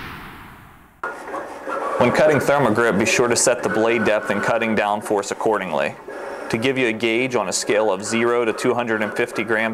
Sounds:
Speech

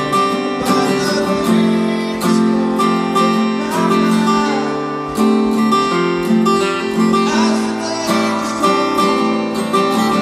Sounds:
Guitar, Strum, Music, Acoustic guitar, Plucked string instrument, Musical instrument

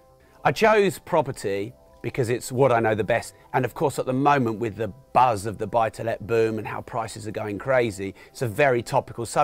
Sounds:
Speech, monologue, Male speech

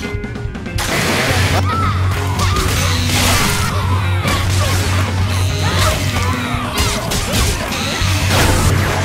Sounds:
Chainsaw, Music

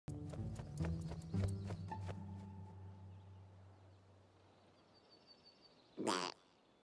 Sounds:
Bird, Quack, Animal, Music

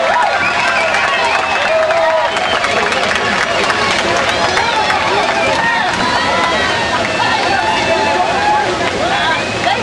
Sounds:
Speech, Waterfall

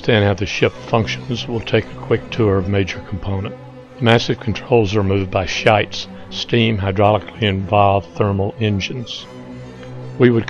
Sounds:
Speech, Music

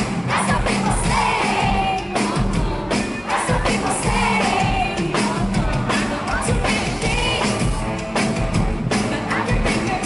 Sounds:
Singing, Music

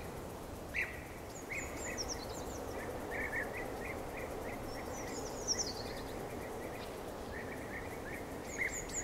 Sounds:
Environmental noise

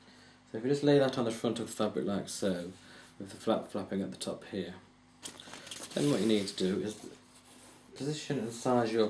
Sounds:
Speech

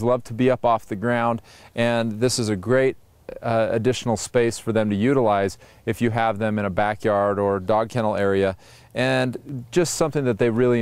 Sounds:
Speech

